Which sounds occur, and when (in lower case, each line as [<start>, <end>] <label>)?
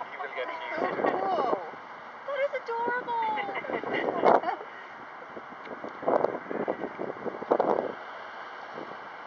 [0.00, 0.90] man speaking
[0.00, 3.81] conversation
[0.00, 9.25] wind
[0.75, 1.66] woman speaking
[0.75, 1.69] wind noise (microphone)
[1.02, 1.09] tick
[2.26, 3.59] woman speaking
[2.63, 2.67] tick
[2.91, 4.57] wind noise (microphone)
[3.21, 4.64] laughter
[4.29, 4.36] tick
[5.60, 7.95] wind noise (microphone)
[5.61, 5.68] tick
[5.87, 5.91] tick
[6.16, 6.24] tick
[7.53, 7.59] tick
[7.67, 7.74] tick
[8.74, 8.98] wind noise (microphone)